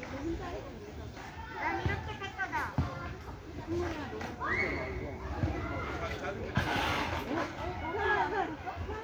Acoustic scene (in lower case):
park